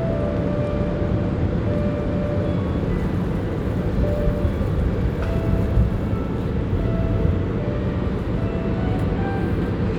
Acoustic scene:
park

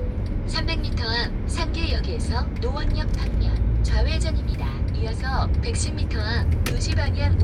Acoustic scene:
car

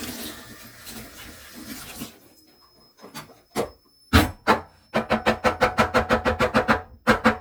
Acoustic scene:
kitchen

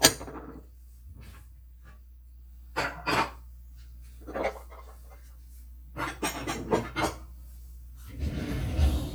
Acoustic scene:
kitchen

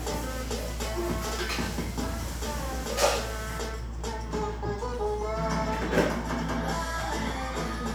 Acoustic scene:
cafe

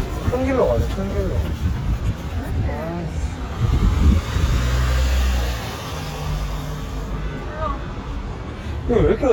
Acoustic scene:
street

